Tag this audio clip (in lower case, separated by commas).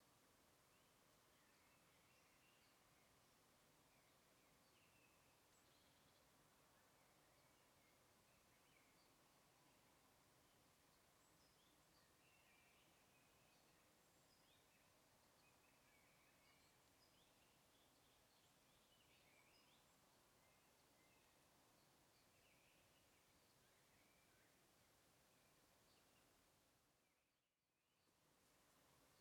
bird, animal, bird vocalization, wild animals